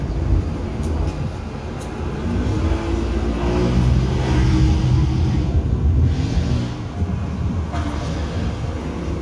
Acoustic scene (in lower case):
residential area